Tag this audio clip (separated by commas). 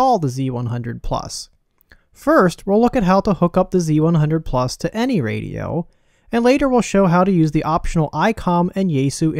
Speech